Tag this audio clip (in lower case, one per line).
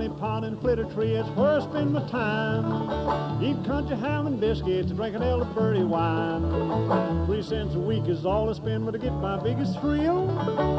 music